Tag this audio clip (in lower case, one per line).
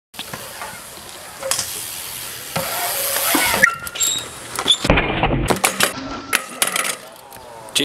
speech